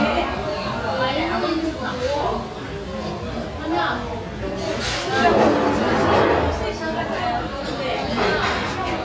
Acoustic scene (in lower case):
restaurant